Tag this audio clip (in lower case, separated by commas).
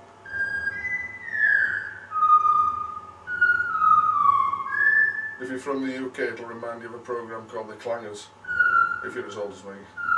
music, speech, theremin